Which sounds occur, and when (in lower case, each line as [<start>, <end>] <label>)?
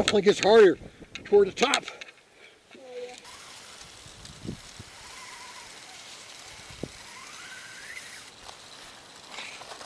[0.00, 0.13] tick
[0.00, 0.75] man speaking
[0.00, 9.85] wind
[0.35, 0.49] tick
[0.74, 1.27] wind noise (microphone)
[1.10, 1.22] tick
[1.23, 1.78] man speaking
[1.53, 2.14] generic impact sounds
[1.82, 2.60] breathing
[2.66, 3.21] generic impact sounds
[2.76, 3.24] human voice
[3.21, 9.85] mechanisms
[3.70, 3.86] tick
[4.15, 4.85] wind noise (microphone)
[4.16, 4.34] tick
[6.65, 6.95] wind noise (microphone)
[8.40, 8.54] generic impact sounds
[8.64, 9.02] surface contact
[9.28, 9.57] breathing
[9.54, 9.85] generic impact sounds